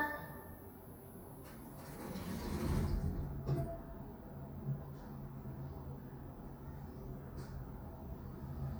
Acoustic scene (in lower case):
elevator